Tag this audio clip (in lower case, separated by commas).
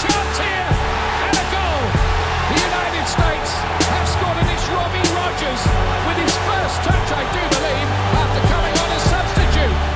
music